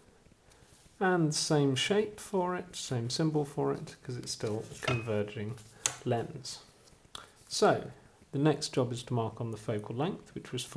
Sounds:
Speech

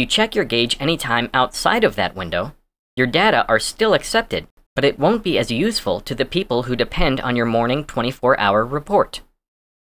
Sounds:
Speech

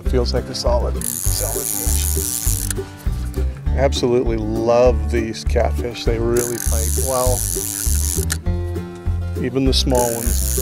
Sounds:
Music, Speech

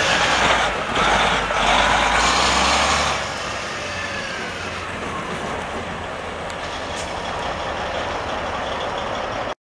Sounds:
Truck, Vehicle

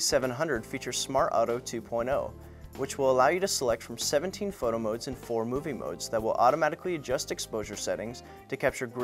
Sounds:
Speech, Music

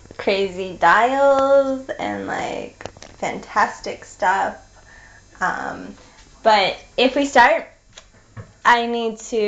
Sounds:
Speech

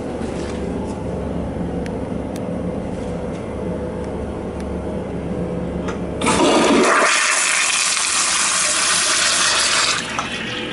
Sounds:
Toilet flush

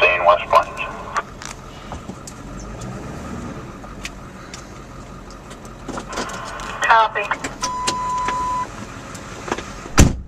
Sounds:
Car, Speech, Vehicle

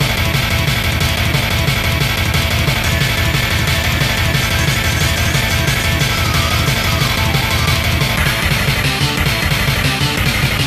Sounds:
Music, Video game music

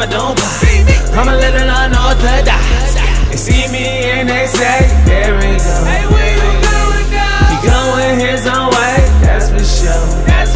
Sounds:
Music, Tender music

